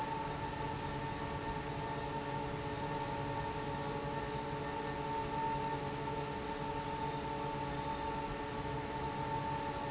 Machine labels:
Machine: fan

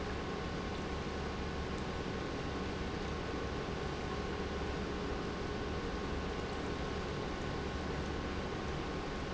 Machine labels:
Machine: pump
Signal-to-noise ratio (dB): -6 dB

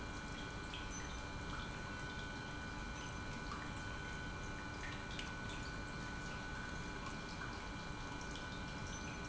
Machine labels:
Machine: pump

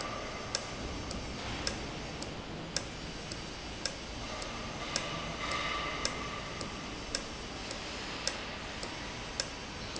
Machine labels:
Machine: valve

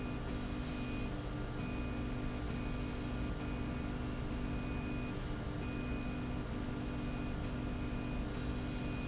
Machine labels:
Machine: slide rail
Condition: normal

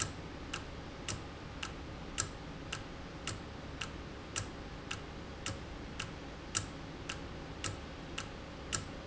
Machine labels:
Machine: valve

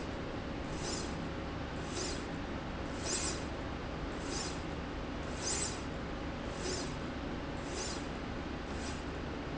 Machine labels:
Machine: slide rail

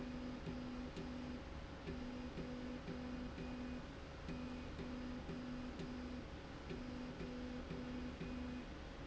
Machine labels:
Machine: slide rail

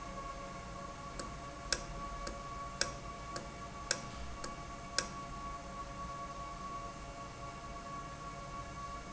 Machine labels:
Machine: valve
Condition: normal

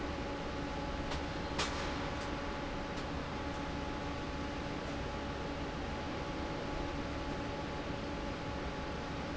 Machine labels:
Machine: fan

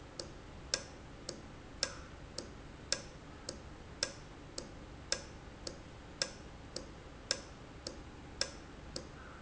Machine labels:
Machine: valve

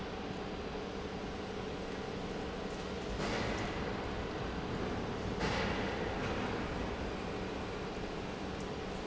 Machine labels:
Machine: pump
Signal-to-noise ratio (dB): -6 dB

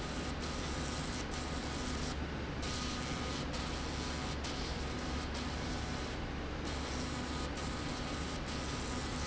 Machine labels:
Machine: slide rail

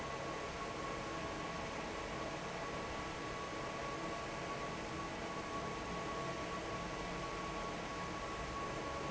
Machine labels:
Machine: fan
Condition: normal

